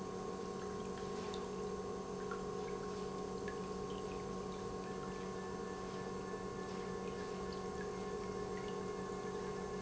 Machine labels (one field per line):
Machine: pump